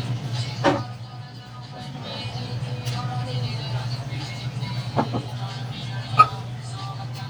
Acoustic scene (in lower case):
restaurant